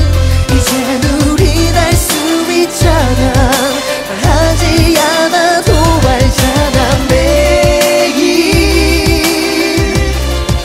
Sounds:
Music of Asia

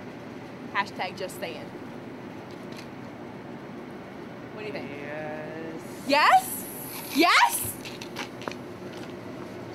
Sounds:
Speech, outside, urban or man-made

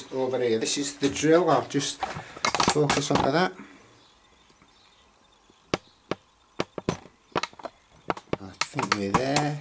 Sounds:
Speech

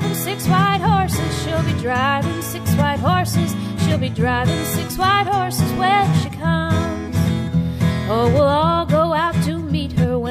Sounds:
Music

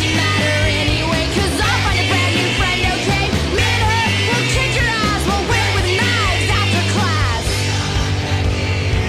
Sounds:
Singing, Music, Punk rock

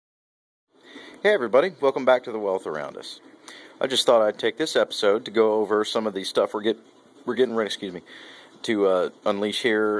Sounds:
Speech, inside a small room

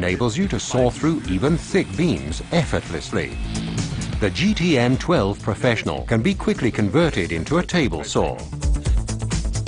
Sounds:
Music, Speech

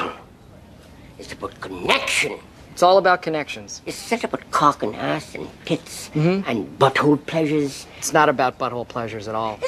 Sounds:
Speech, inside a small room

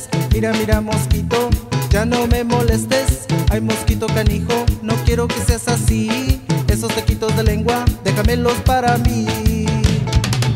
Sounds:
Music

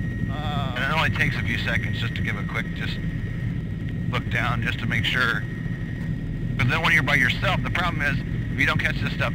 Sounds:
Speech

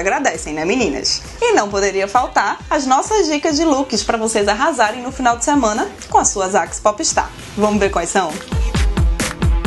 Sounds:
Music, Speech

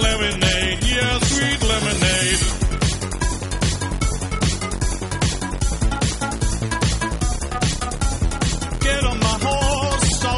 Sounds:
Music

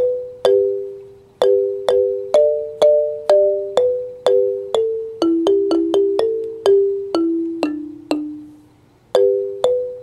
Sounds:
Marimba, Music, xylophone

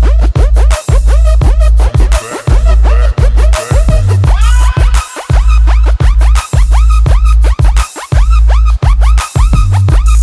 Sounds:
Music

